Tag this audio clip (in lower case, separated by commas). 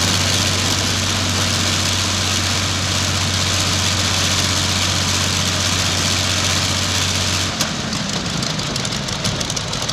airscrew